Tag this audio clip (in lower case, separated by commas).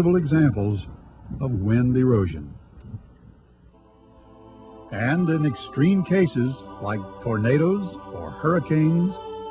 speech, music